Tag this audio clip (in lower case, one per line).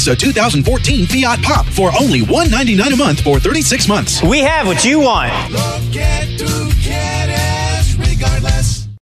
speech
music